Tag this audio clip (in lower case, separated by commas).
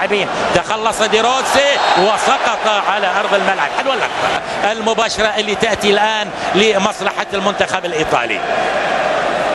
speech